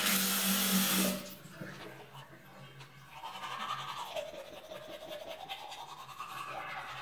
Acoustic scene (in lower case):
restroom